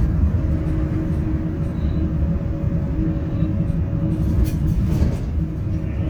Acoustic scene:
bus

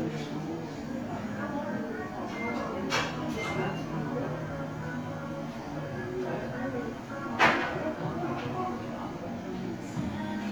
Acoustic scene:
crowded indoor space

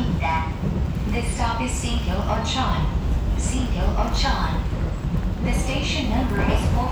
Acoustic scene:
subway train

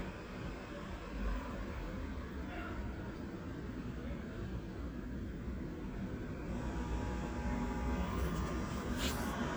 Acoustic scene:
residential area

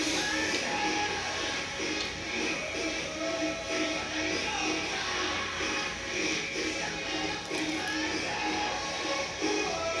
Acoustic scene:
restaurant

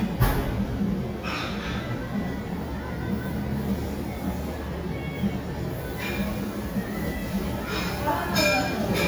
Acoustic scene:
restaurant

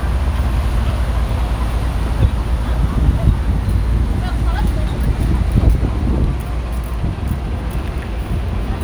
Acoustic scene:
street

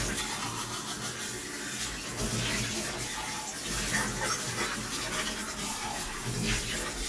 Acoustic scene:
kitchen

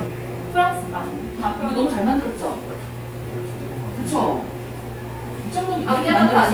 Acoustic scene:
crowded indoor space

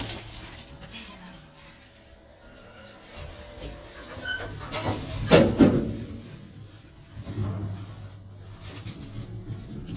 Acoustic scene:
elevator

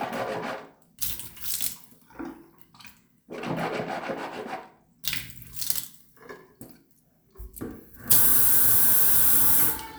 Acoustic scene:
restroom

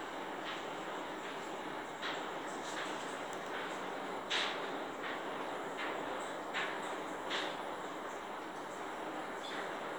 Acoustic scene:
elevator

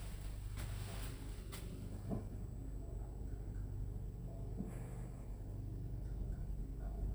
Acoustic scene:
elevator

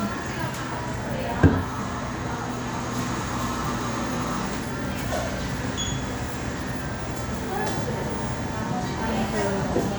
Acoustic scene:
crowded indoor space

